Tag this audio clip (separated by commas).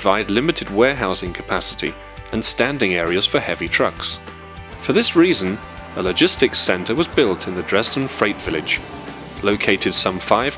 Vehicle, Speech, Music